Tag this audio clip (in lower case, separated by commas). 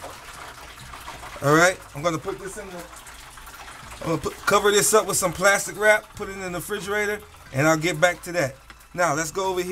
water, faucet